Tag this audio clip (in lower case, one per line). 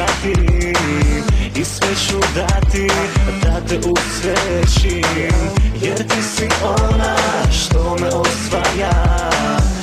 music
rhythm and blues